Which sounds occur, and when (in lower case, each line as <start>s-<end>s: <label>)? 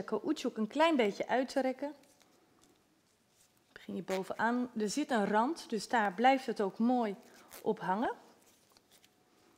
0.0s-2.0s: woman speaking
0.0s-9.5s: mechanisms
0.6s-1.4s: surface contact
1.9s-2.4s: surface contact
2.6s-2.8s: surface contact
3.0s-3.5s: surface contact
3.7s-7.1s: woman speaking
4.1s-4.5s: surface contact
6.0s-6.1s: tick
7.2s-7.6s: surface contact
7.6s-8.1s: woman speaking
8.4s-9.1s: surface contact
9.3s-9.5s: breathing